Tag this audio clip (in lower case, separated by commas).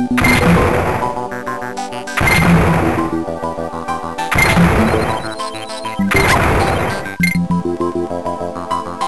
music